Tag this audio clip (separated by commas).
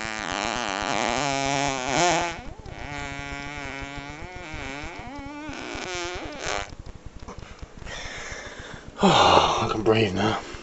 Fart, Speech, people farting